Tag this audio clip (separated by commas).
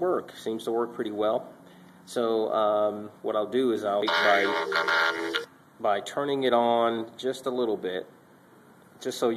Speech